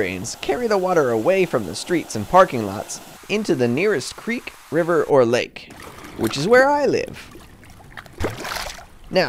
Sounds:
water, speech

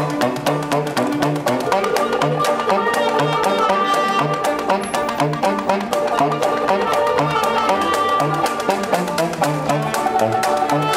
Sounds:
playing washboard

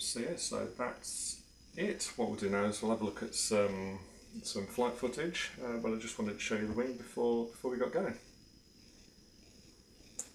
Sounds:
inside a small room, speech

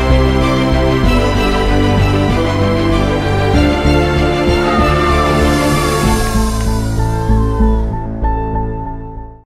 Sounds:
music

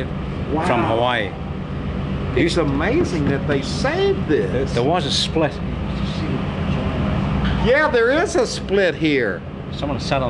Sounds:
speech

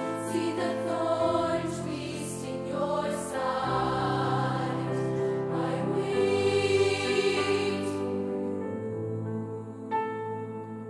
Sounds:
music, choir

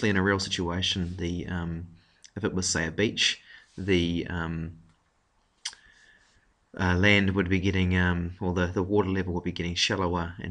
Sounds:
speech

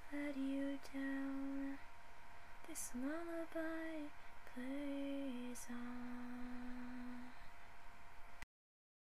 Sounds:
lullaby

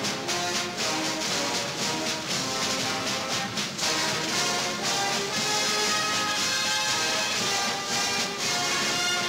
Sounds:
music

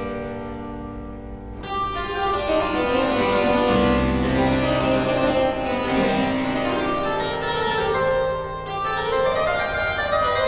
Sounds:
musical instrument, classical music, harpsichord, piano, keyboard (musical), music, playing harpsichord

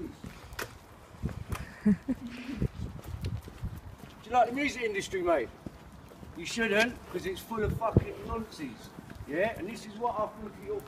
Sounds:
speech

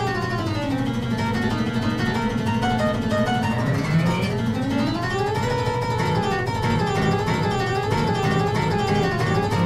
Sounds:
pizzicato, harp

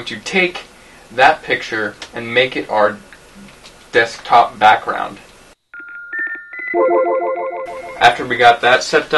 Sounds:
inside a small room, speech

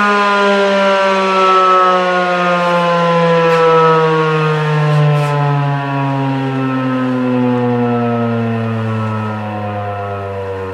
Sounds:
civil defense siren, siren

